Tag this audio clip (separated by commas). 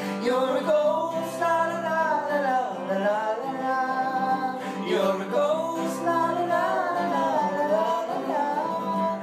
Music, Rock music